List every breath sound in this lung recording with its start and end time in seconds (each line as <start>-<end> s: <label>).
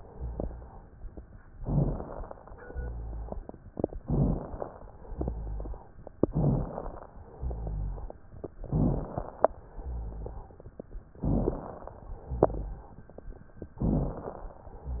1.50-2.30 s: inhalation
1.50-2.30 s: crackles
2.64-3.44 s: exhalation
2.64-3.44 s: rhonchi
4.02-4.82 s: inhalation
4.02-4.82 s: crackles
5.08-5.84 s: exhalation
5.08-5.84 s: rhonchi
6.32-7.12 s: inhalation
6.32-7.12 s: crackles
7.34-8.10 s: exhalation
7.34-8.10 s: rhonchi
8.69-9.49 s: inhalation
8.69-9.49 s: crackles
9.79-10.55 s: exhalation
9.79-10.55 s: rhonchi
11.23-12.03 s: inhalation
11.23-12.03 s: crackles
12.29-13.00 s: exhalation
12.29-13.00 s: rhonchi
13.83-14.63 s: inhalation
13.83-14.63 s: crackles